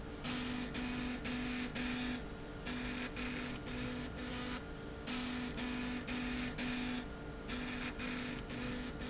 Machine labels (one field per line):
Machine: slide rail